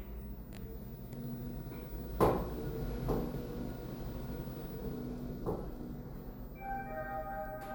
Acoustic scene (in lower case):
elevator